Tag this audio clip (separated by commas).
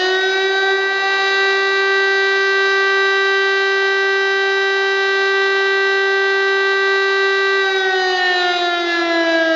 civil defense siren